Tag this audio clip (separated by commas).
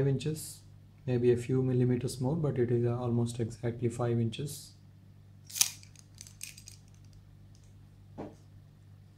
inside a small room, Speech